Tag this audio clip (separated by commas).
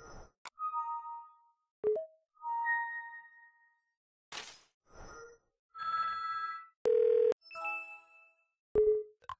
Music